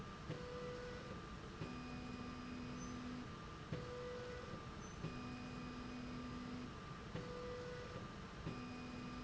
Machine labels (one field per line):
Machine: slide rail